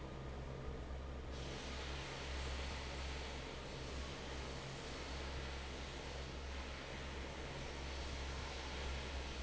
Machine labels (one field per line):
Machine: fan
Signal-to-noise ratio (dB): 6 dB